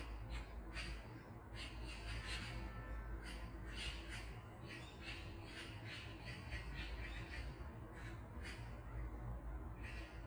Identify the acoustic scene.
park